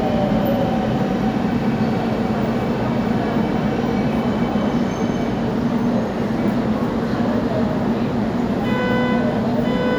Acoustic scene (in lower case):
subway station